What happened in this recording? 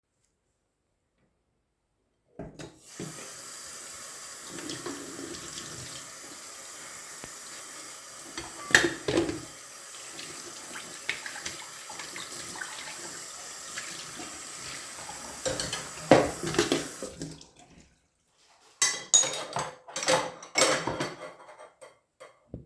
I turned on the tap and started to wash my plates.